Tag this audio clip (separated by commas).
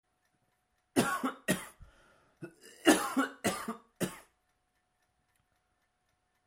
Respiratory sounds, Cough